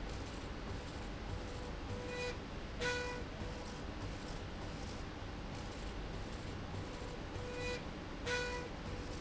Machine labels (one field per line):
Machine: slide rail